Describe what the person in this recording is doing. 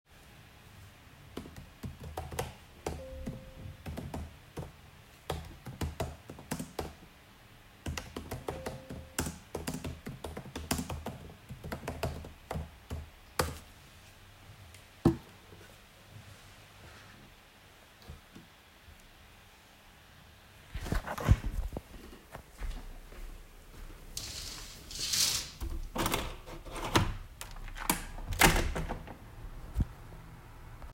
I was working when suddenly needed some fresh air so I went to open the window.